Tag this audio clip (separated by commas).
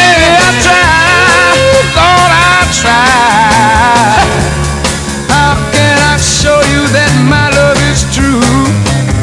Soul music, Music